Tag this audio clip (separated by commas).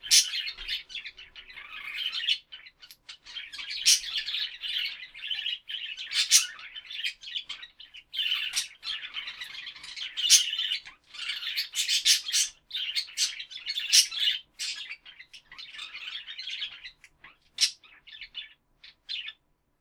Animal, Chirp, Wild animals, bird call, Bird